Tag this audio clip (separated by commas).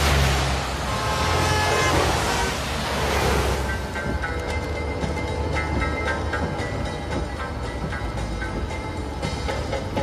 Music